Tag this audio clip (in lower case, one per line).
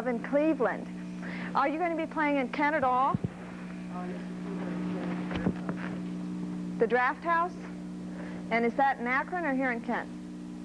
speech